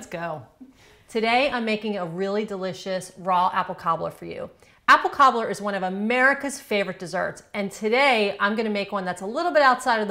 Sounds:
speech

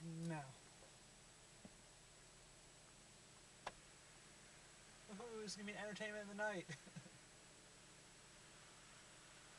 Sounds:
speech

